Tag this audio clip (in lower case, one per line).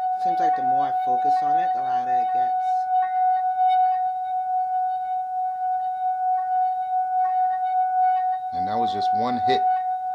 speech